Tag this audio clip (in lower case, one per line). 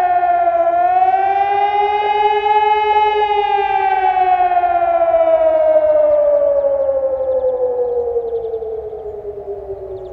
siren